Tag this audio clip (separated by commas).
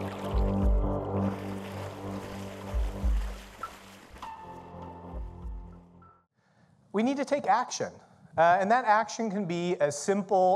Speech, inside a large room or hall, outside, rural or natural, Music